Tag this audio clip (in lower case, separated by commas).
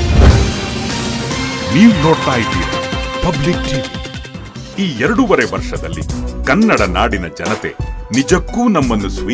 music, speech